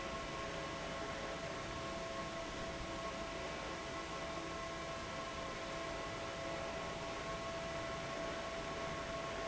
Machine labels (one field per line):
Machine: fan